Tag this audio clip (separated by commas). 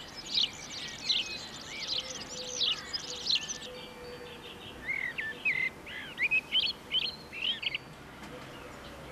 bird song, Bird